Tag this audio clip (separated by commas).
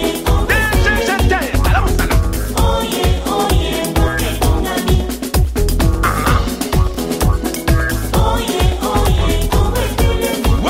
Techno, Music